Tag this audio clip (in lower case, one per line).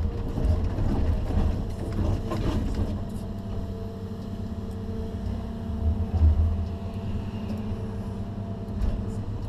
vehicle